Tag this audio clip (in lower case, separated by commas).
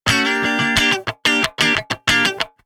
plucked string instrument, musical instrument, electric guitar, guitar, music